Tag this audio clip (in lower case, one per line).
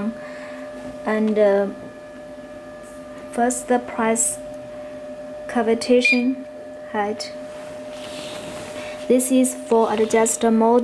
speech